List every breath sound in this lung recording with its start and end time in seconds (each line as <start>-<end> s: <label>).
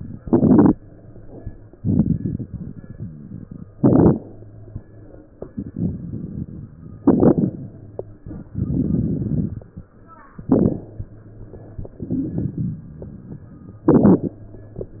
1.72-3.64 s: inhalation
3.67-5.31 s: exhalation
5.35-6.78 s: inhalation
6.79-8.27 s: exhalation
8.26-9.94 s: inhalation
9.97-11.81 s: exhalation
11.83-13.78 s: inhalation
13.77-15.00 s: exhalation